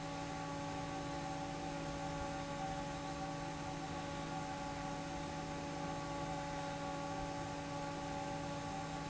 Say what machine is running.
fan